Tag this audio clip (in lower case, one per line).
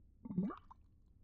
liquid
gurgling
water